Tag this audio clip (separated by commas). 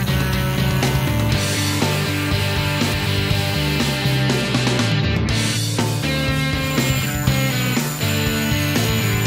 Music